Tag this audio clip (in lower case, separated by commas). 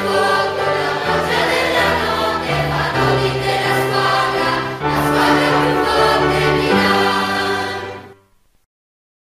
music